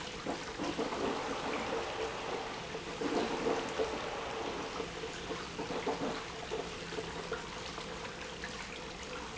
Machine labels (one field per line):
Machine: pump